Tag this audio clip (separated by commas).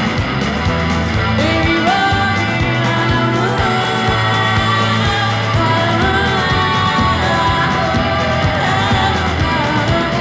Music